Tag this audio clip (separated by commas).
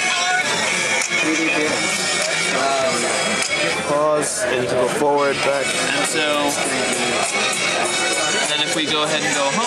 Speech, Music